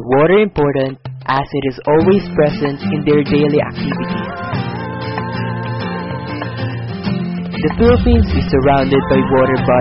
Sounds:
speech
music

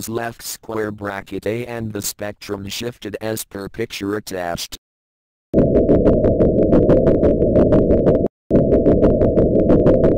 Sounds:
speech
engine

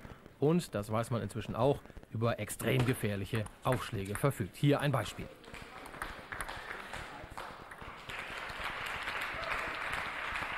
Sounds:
speech

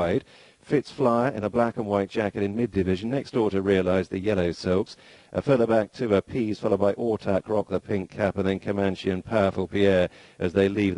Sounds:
speech

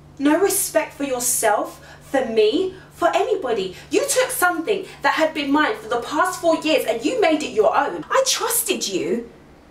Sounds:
narration
speech

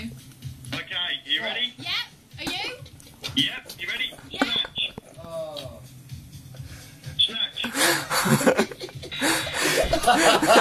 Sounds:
speech

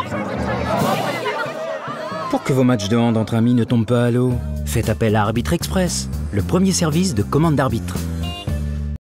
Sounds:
music
speech

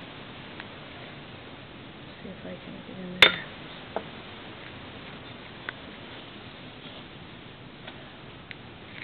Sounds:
speech

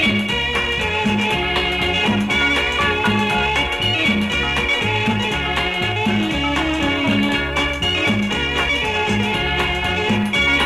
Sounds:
music
middle eastern music
folk music

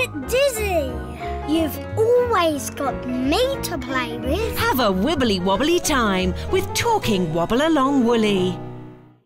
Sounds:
speech
music

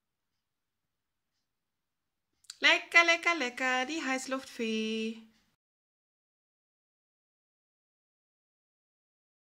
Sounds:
strike lighter

